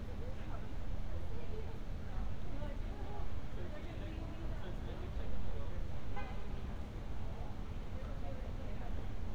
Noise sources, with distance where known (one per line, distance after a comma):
background noise